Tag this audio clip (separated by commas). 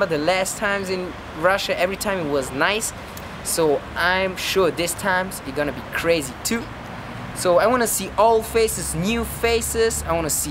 Speech